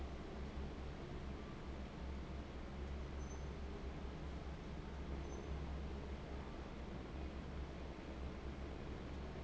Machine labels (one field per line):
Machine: fan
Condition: abnormal